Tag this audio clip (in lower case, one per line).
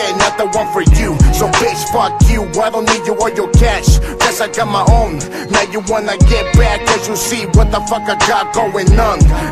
music